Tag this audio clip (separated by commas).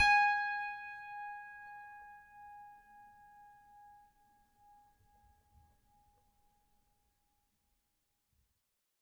Musical instrument, Piano, Keyboard (musical), Music